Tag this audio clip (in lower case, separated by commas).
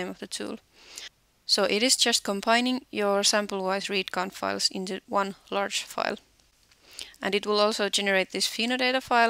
speech